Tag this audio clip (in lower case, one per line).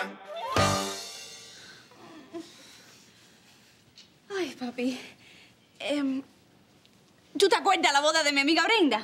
speech
music